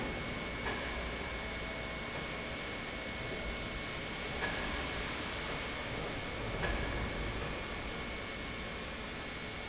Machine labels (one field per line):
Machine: pump